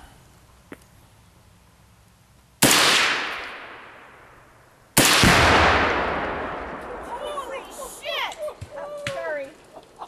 Gunfire and startled bystanders